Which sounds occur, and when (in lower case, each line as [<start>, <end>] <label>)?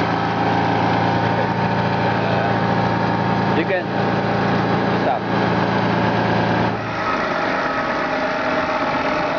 [0.01, 9.35] mechanisms
[2.17, 2.64] male speech
[3.47, 4.27] male speech
[4.76, 5.75] male speech